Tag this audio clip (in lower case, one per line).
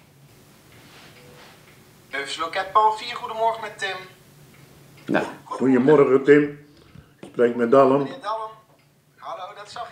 speech